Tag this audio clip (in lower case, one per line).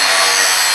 tools